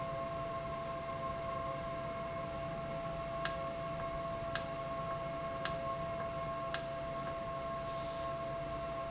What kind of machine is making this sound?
valve